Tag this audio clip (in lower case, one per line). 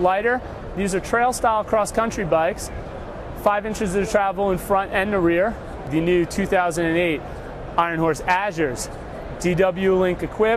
speech